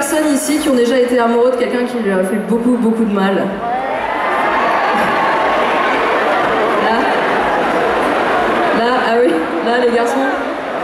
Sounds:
speech

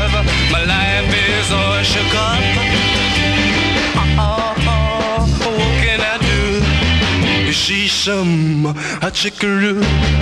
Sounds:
music

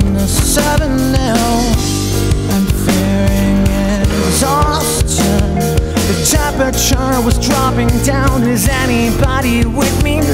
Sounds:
music, theme music

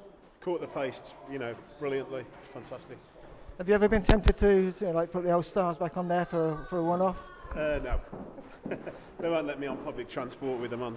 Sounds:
speech

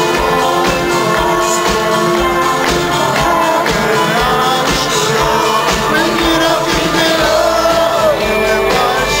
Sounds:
inside a large room or hall, music, singing

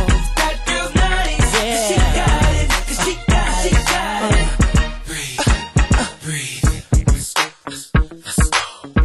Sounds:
hip hop music, music

